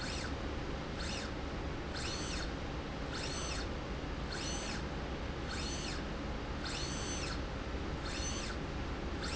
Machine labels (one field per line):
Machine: slide rail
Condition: normal